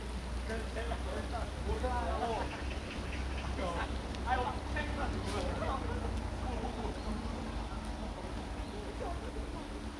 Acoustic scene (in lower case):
park